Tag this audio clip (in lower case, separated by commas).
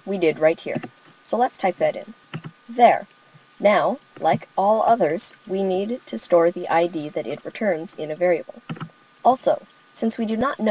monologue